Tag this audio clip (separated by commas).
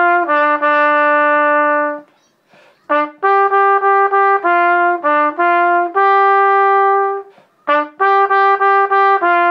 Music, Musical instrument, Trumpet